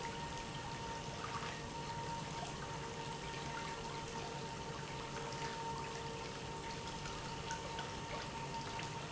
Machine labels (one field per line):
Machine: pump